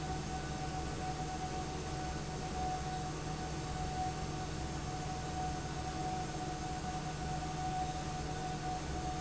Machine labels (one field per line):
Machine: fan